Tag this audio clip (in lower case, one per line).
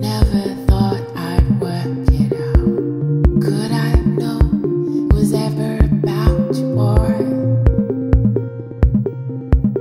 drum machine
music